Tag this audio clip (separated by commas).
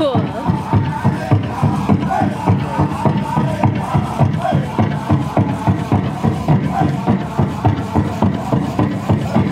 Music, Speech